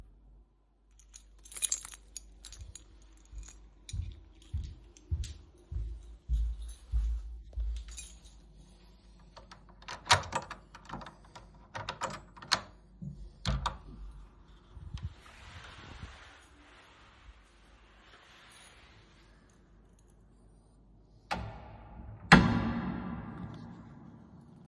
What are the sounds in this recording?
keys, footsteps, door